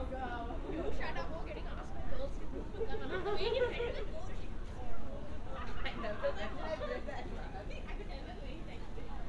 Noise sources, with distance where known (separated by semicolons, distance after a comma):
person or small group talking, near